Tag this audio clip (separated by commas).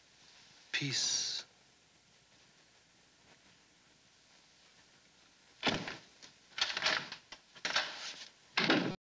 Speech